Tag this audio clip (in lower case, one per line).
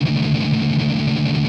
musical instrument
strum
music
guitar
plucked string instrument